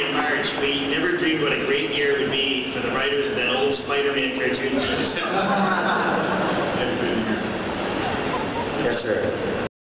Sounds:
speech

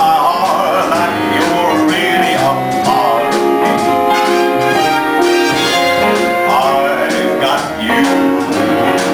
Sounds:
male singing
music

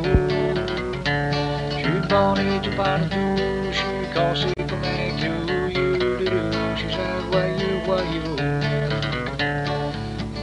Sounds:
music

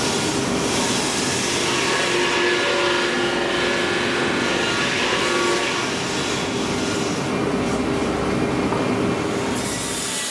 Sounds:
vehicle

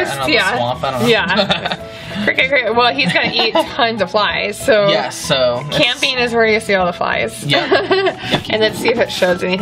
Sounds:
speech
music

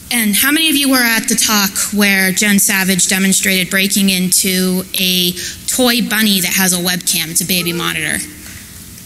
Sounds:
speech
cacophony

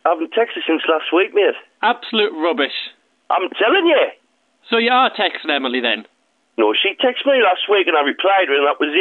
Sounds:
speech

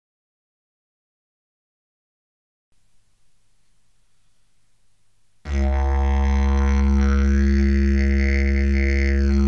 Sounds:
playing didgeridoo

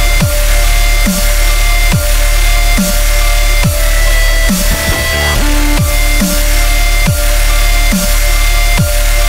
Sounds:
music

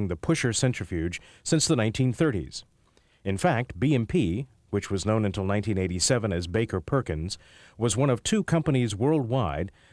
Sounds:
speech

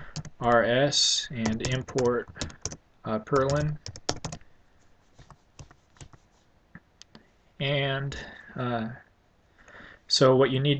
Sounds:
speech

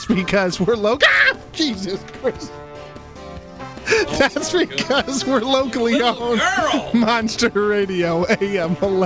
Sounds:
speech
music

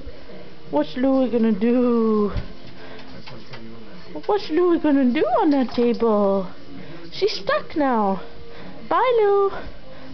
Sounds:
speech

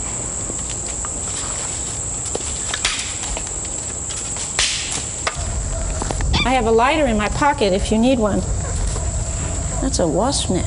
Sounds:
animal

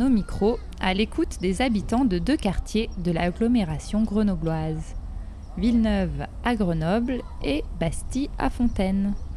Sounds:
speech

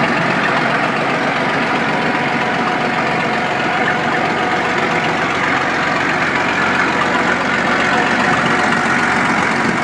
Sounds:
truck
engine
vehicle
idling
heavy engine (low frequency)

